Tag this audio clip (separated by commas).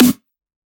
Music, Percussion, Drum, Snare drum, Musical instrument